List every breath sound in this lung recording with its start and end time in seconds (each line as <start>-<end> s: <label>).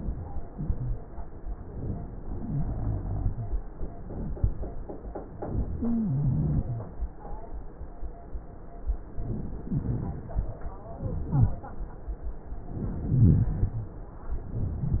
0.65-1.06 s: wheeze
2.43-3.55 s: inhalation
2.43-3.55 s: wheeze
5.75-6.87 s: inhalation
5.75-6.87 s: wheeze
11.27-11.69 s: wheeze
13.07-13.93 s: rhonchi